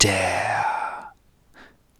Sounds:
Human voice, Whispering

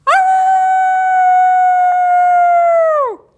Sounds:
Dog, Animal, Domestic animals

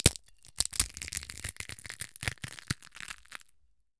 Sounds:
Crushing

